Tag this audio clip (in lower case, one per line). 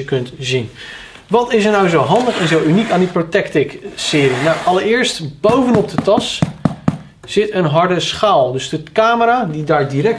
speech